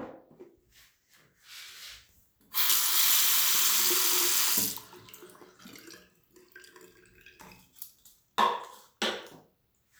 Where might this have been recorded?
in a restroom